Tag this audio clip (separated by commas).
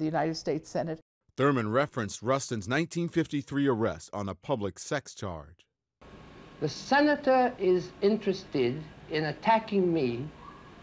Speech